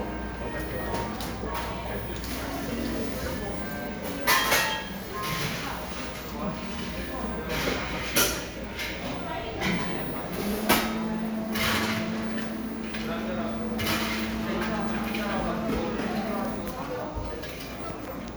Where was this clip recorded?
in a cafe